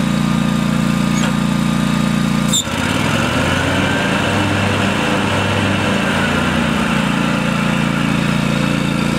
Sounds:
Vehicle

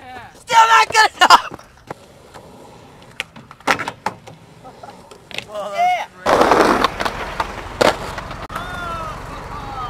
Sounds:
Speech, skateboarding, Skateboard

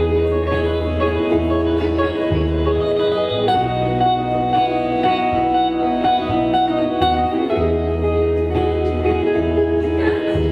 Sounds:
Musical instrument, Guitar, Plucked string instrument, Music

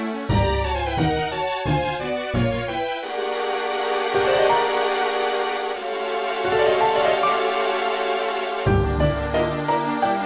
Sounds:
Video game music, Theme music, Music

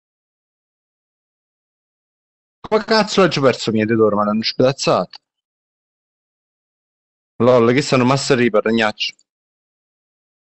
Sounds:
inside a small room, Speech

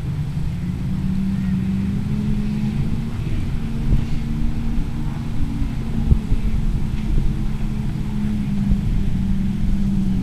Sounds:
Vehicle

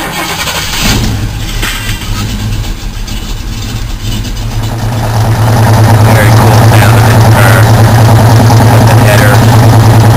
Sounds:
Vehicle, Car, Speech, outside, rural or natural

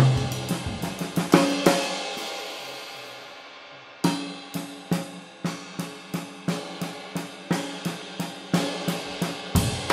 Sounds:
playing cymbal

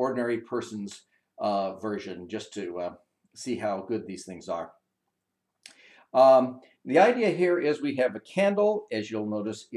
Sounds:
Speech

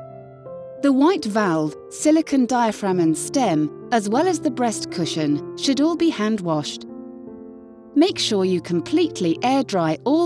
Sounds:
Speech, Music

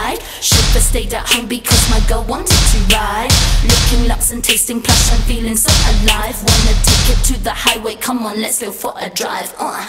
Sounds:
Music

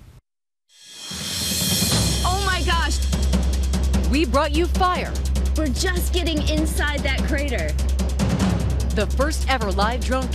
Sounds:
Snare drum

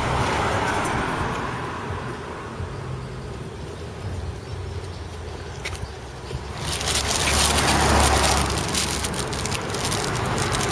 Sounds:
Motor vehicle (road), Vehicle

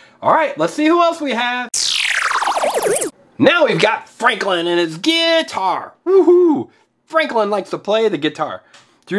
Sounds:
Speech

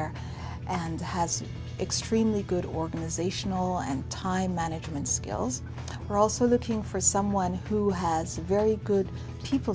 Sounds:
Speech, Music, inside a small room

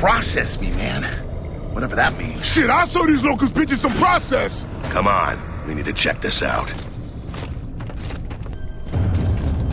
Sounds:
Speech

